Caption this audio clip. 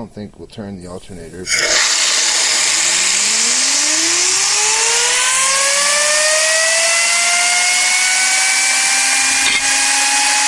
A man speaks, and an engine revs up